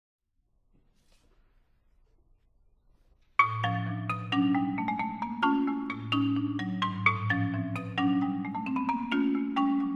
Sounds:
marimba, music

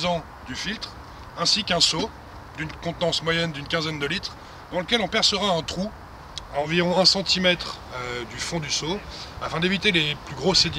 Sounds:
speech

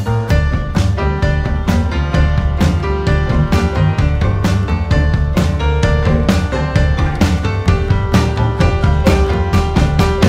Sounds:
music

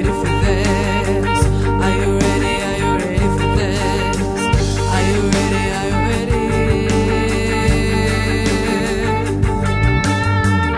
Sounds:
music

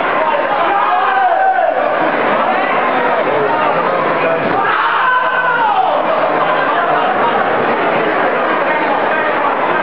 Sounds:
inside a public space, speech

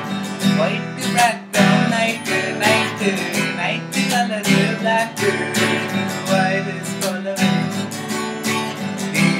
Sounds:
acoustic guitar, music, musical instrument, guitar, plucked string instrument, strum

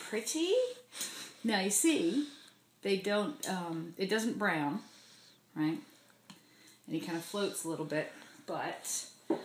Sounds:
speech

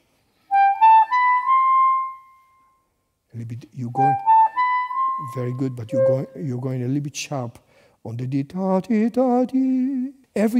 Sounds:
playing clarinet

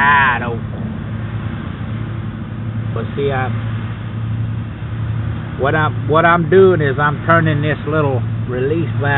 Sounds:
outside, urban or man-made, speech

